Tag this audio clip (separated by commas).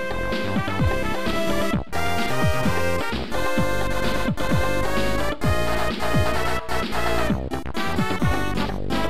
Music, Soundtrack music, Video game music